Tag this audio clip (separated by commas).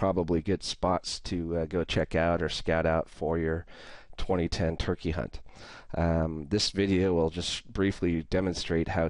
Speech